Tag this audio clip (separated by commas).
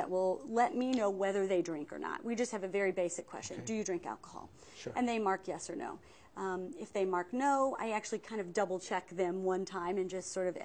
Conversation, Speech